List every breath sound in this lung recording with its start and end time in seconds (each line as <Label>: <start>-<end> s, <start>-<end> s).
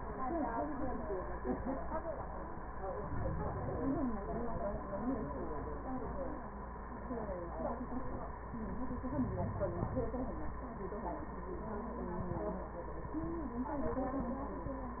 Inhalation: 2.90-4.11 s, 8.99-10.20 s